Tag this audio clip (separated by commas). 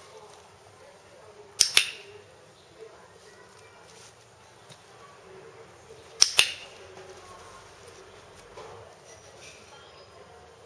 Speech